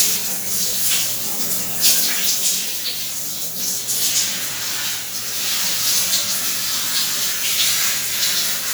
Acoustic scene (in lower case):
restroom